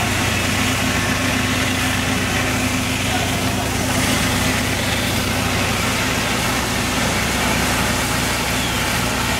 An engine is idling outside